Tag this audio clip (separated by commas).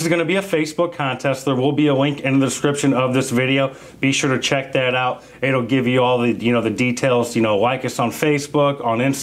Speech